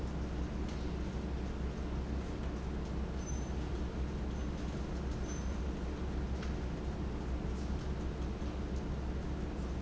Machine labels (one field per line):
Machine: fan